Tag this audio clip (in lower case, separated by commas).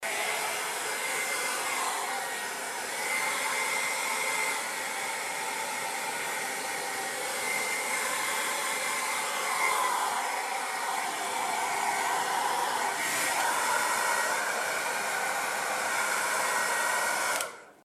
home sounds